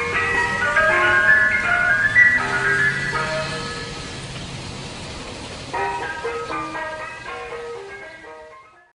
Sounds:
vehicle
music

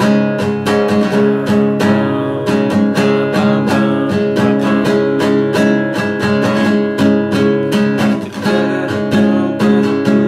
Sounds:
plucked string instrument
guitar
music
strum
musical instrument
acoustic guitar

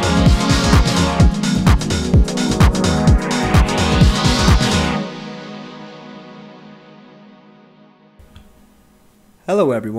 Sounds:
music
speech

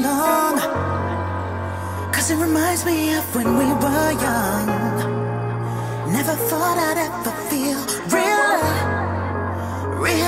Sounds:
music

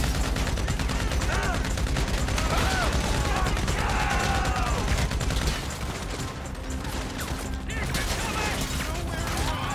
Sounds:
machine gun shooting

